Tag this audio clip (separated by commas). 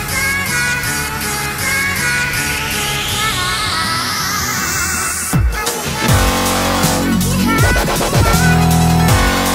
Music, Dubstep, Electronic music